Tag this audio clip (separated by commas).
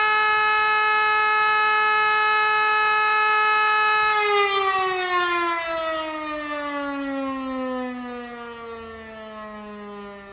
civil defense siren